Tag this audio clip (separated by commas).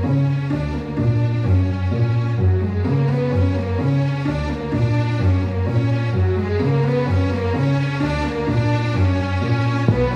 Music